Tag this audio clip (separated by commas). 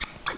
home sounds, Scissors